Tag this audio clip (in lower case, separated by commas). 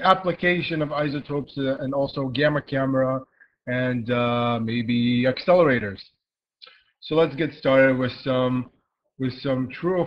speech